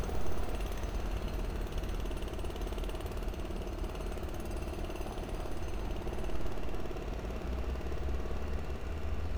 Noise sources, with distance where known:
jackhammer

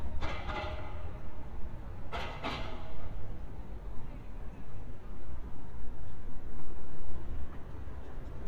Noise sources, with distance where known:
unidentified impact machinery, near

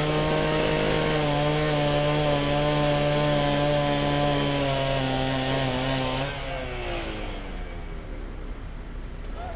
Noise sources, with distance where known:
unidentified powered saw

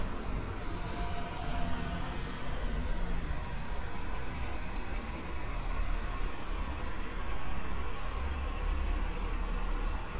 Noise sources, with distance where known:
engine of unclear size

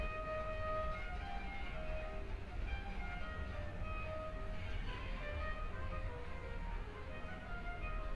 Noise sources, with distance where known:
music from an unclear source

